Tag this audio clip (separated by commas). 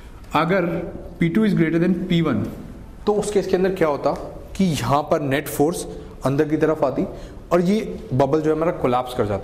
Speech